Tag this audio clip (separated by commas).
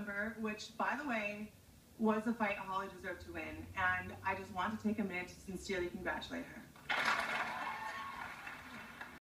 Speech, monologue